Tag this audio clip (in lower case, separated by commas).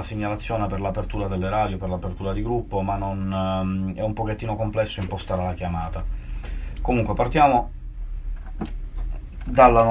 speech